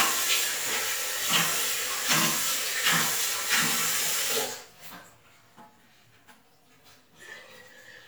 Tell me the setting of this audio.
restroom